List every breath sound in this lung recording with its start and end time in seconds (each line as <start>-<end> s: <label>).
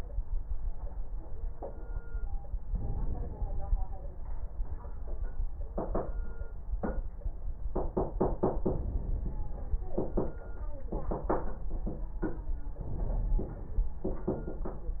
2.65-3.77 s: inhalation
8.76-9.98 s: inhalation
12.84-14.05 s: inhalation